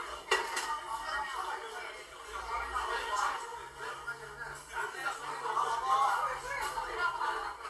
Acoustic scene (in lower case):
crowded indoor space